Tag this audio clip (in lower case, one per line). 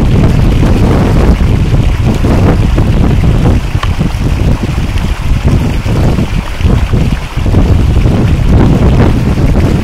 outside, rural or natural